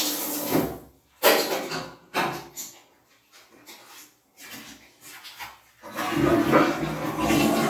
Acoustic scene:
restroom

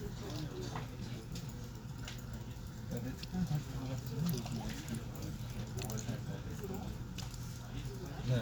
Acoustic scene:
crowded indoor space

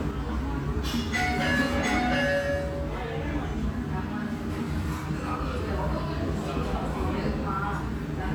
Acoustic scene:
restaurant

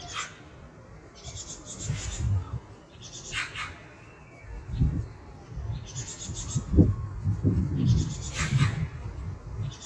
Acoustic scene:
park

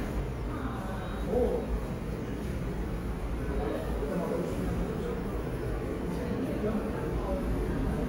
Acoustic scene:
subway station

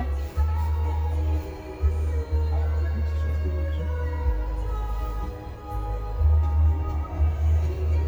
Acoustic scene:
car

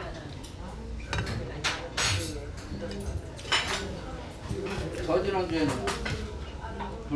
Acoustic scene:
restaurant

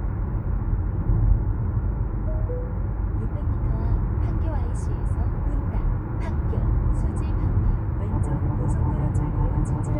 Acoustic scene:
car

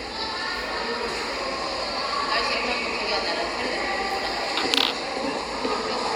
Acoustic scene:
subway station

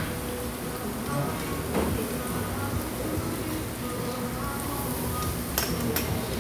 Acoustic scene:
restaurant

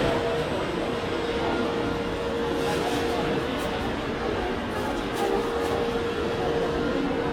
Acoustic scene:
crowded indoor space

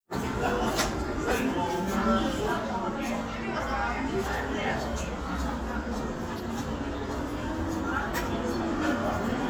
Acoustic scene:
crowded indoor space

